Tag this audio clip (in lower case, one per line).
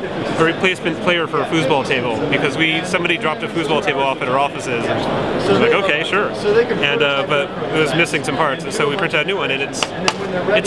speech